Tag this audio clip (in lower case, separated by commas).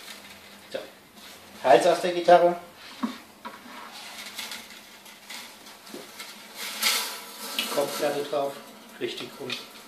speech